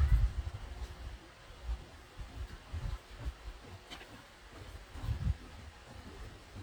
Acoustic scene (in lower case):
park